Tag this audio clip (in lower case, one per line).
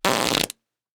fart